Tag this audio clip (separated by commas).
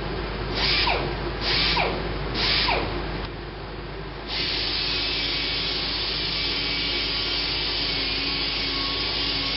Tools, Power tool